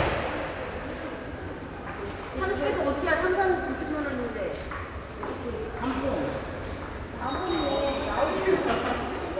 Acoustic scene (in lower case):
subway station